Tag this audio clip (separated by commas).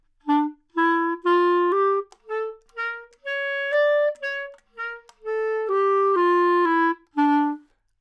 Wind instrument, Musical instrument, Music